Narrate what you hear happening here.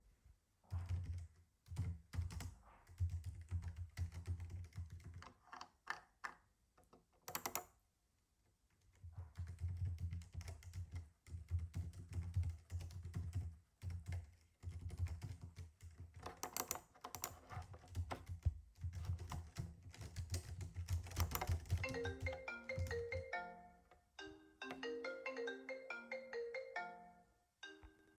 I sat down on a chair and started typing on a keyboard. During typing I clicked and scrolled the mouse while a phone notification sound occurred.